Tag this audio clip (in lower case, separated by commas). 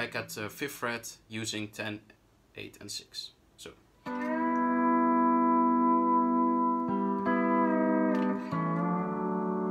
playing steel guitar